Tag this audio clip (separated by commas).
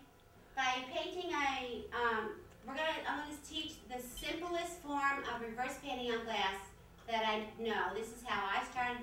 Speech